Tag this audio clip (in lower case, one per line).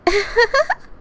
laughter
giggle
human voice